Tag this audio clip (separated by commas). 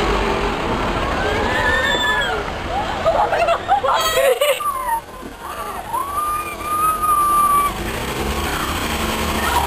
Speech